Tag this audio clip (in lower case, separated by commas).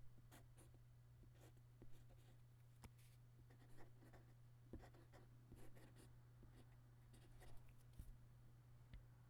domestic sounds, writing